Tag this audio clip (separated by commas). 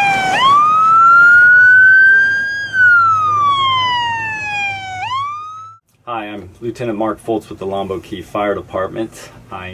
Speech